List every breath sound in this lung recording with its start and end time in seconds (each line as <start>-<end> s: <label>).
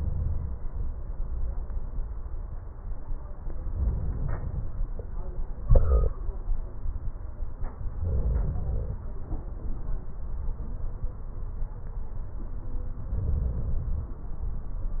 3.70-4.62 s: inhalation
8.01-8.99 s: crackles
8.04-9.02 s: inhalation
13.15-14.13 s: inhalation